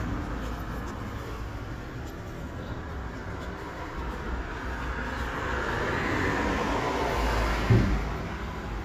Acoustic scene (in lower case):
street